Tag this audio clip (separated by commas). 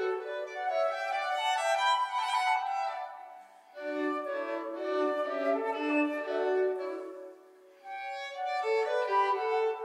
Music, fiddle, Musical instrument